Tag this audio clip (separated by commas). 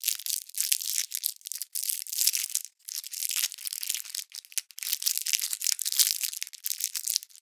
Crumpling